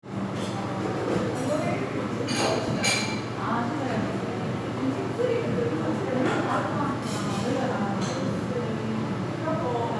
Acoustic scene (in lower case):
crowded indoor space